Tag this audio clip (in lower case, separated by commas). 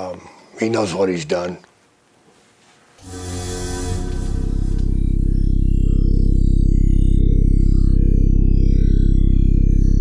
music, speech